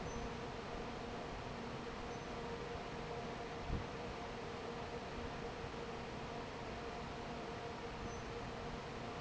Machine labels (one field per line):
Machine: fan